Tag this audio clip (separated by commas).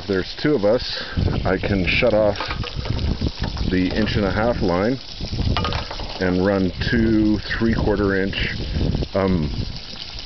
Speech, Water